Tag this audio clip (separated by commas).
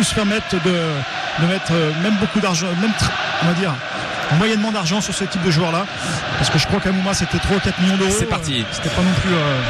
Speech